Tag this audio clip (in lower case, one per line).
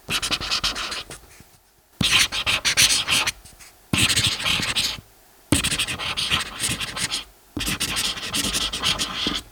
writing
domestic sounds